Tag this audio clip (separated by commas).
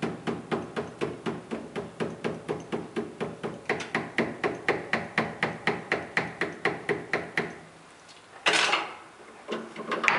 Tools, Hammer